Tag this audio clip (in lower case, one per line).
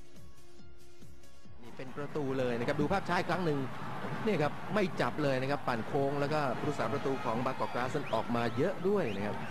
music
speech